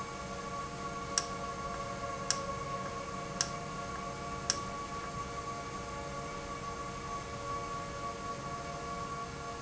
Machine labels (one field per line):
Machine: valve